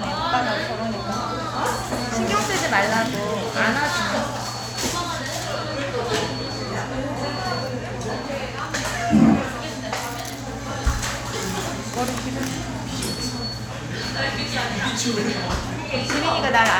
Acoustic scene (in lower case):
cafe